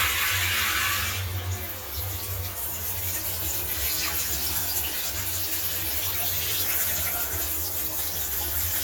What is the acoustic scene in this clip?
restroom